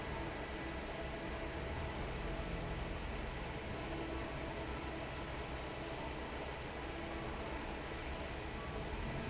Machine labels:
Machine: fan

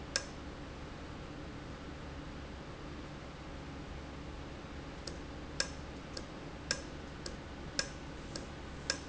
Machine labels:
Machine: valve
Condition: normal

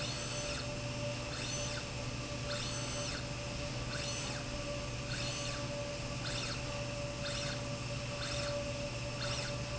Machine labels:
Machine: slide rail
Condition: normal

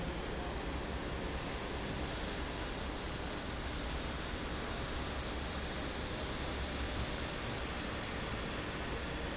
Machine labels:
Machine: fan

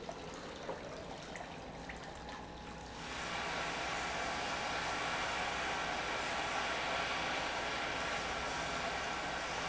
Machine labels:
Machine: pump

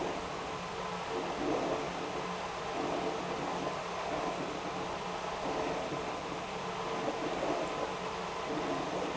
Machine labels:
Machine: pump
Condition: abnormal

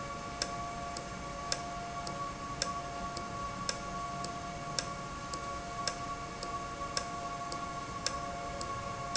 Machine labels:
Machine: valve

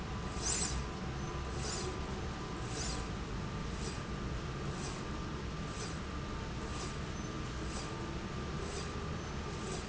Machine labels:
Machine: slide rail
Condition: normal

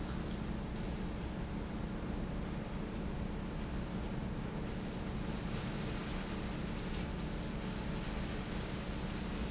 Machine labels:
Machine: fan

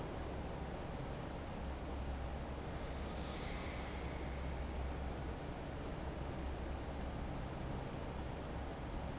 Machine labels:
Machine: fan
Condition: normal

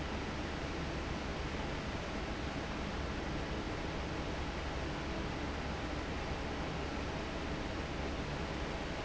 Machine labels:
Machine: fan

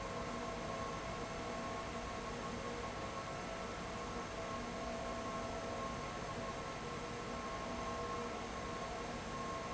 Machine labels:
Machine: fan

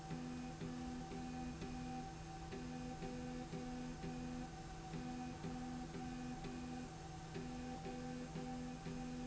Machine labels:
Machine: slide rail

